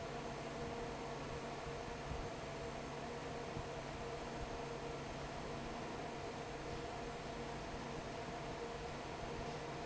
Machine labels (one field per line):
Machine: fan